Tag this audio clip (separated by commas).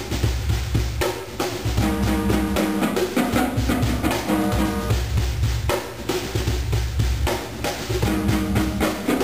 Percussion, Drum roll, playing snare drum, Drum, Snare drum, Rimshot, Bass drum